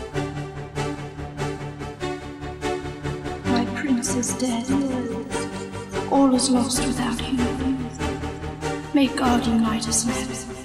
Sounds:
Music

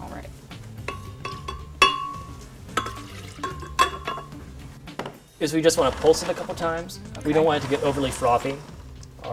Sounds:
Speech, Music

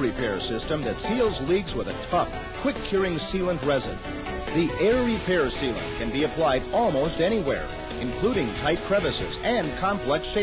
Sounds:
Speech, Music

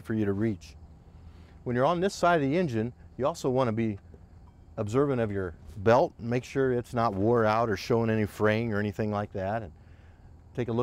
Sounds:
Speech

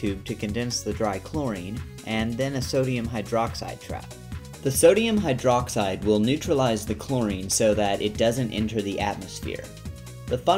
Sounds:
Speech, Music

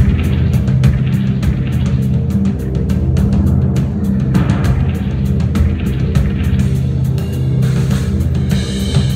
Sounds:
Drum, Drum kit, Bass drum, Musical instrument, Music

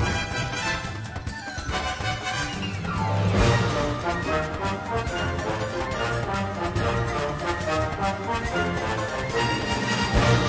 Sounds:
Independent music, Music

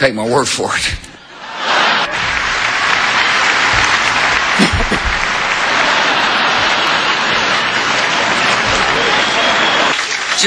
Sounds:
Speech, Male speech

